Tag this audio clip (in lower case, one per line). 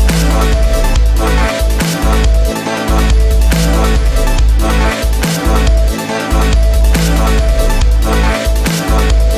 music